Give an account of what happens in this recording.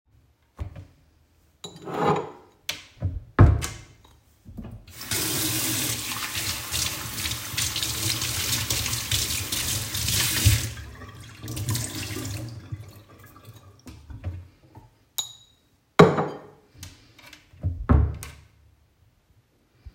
I opened the kitchen drawer and took out a plate producing a rattling sound. I closed the drawer. I then turned on the tap and rinsed the plate under the running water while holding it over the sink. I turned off the water and placed the plate back in the drawer closing it again.